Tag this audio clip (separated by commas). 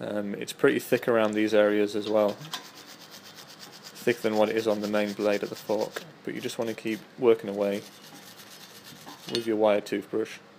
Speech